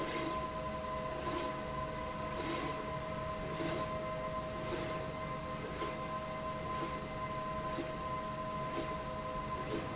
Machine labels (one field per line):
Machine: slide rail